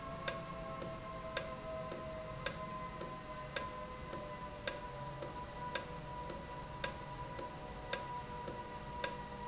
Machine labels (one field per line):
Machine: valve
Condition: normal